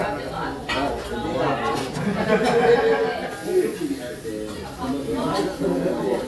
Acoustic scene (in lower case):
crowded indoor space